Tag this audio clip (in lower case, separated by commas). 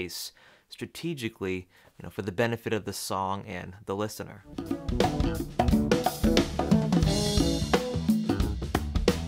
playing congas